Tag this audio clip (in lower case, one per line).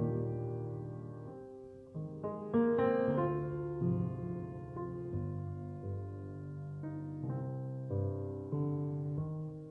music